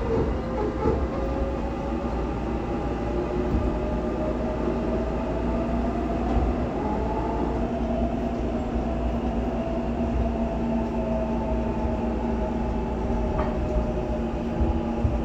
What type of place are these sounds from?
subway train